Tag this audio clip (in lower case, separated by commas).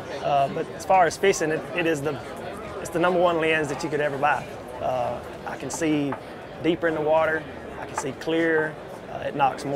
speech